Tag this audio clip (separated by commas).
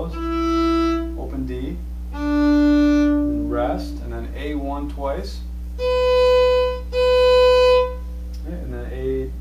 Speech, fiddle, Musical instrument, Music